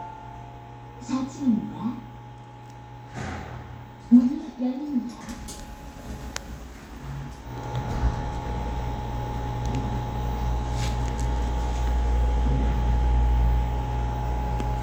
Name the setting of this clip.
elevator